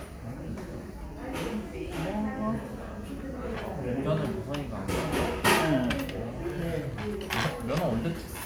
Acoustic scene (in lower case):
restaurant